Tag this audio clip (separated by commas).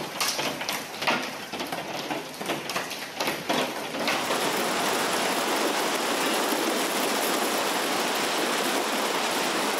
hail